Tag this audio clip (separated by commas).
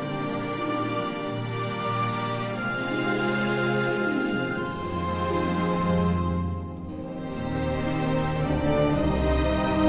Music